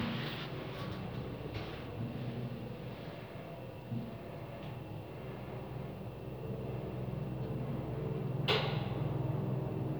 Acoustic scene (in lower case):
elevator